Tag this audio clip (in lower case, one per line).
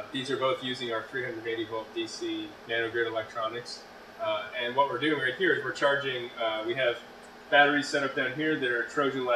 speech